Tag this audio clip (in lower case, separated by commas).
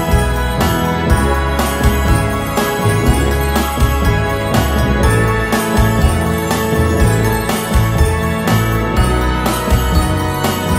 music